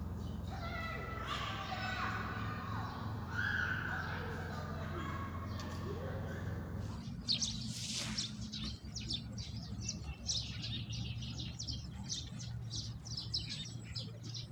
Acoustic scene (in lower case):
park